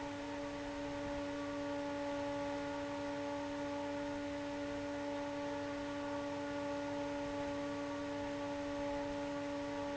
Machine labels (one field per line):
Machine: fan